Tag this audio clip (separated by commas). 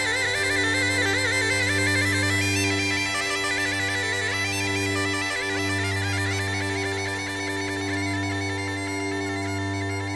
Wind instrument, Bagpipes